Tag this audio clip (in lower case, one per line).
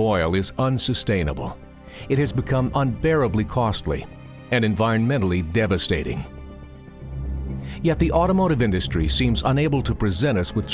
music
speech